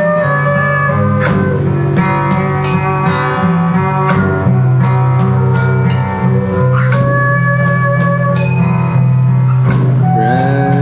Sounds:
slide guitar, music

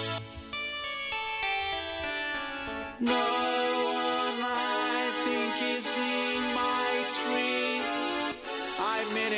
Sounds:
music, musical instrument, guitar

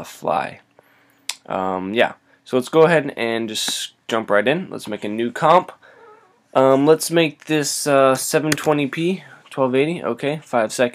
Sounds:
speech

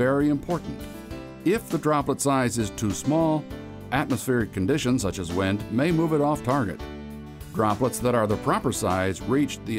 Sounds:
music, speech

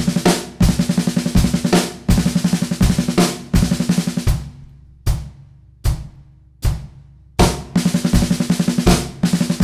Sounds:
cymbal, playing cymbal, music

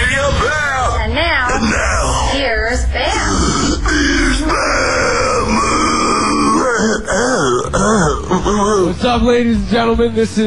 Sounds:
speech, music

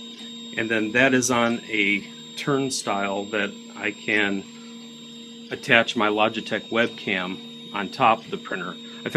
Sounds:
speech, inside a small room

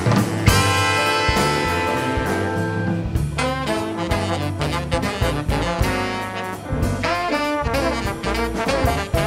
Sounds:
music, orchestra

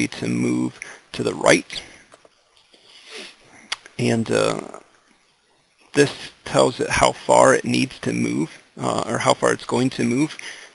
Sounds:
speech

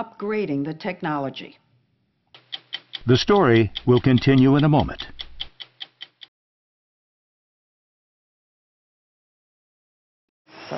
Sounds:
inside a small room, speech

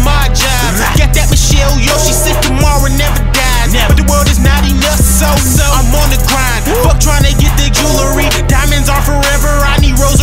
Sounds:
techno, music

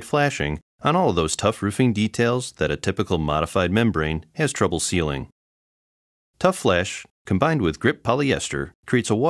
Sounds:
speech

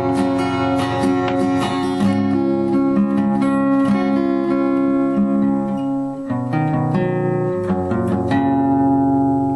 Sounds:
guitar, plucked string instrument, music, musical instrument, acoustic guitar, strum

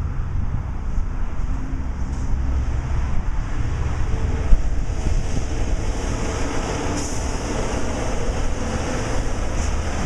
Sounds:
truck, vehicle

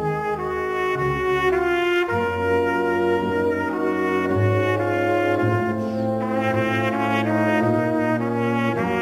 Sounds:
playing trumpet, trumpet, brass instrument

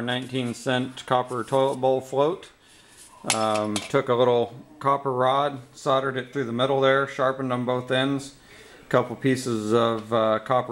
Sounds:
speech

